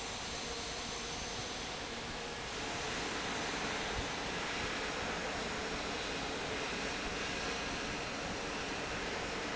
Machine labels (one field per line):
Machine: fan